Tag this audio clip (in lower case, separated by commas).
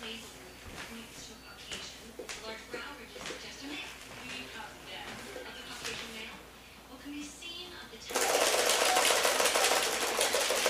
speech